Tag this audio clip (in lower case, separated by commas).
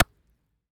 hands, clapping